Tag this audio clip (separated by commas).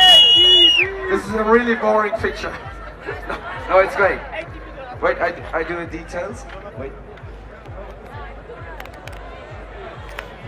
Speech